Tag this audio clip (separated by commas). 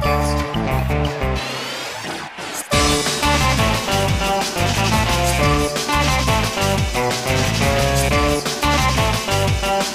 Music, Pop music